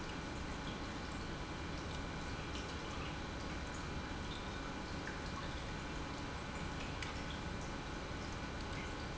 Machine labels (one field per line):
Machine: pump